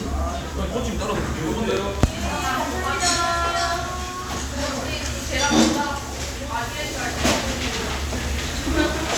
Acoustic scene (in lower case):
crowded indoor space